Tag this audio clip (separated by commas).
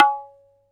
Percussion, Musical instrument, Tabla, Music, Drum